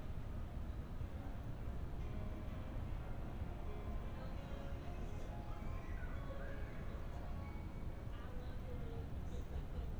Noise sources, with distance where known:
music from an unclear source, far

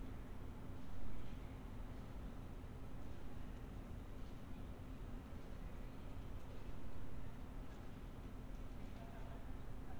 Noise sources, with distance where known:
background noise

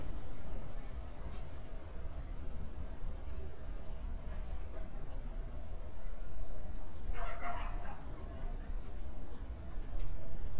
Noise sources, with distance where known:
dog barking or whining

